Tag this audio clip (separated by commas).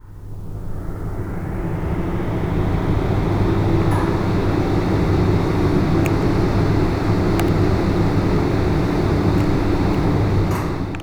Mechanisms